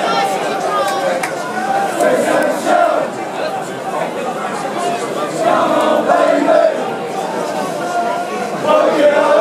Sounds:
Bellow, Speech

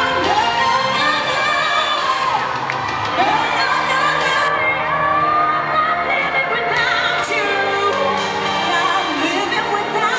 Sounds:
Music, Female singing

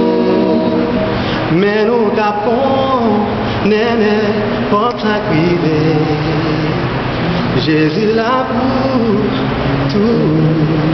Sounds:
Music

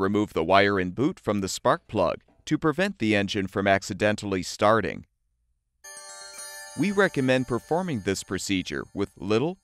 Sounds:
Speech

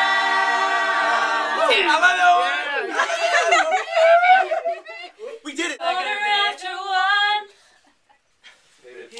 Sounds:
Speech

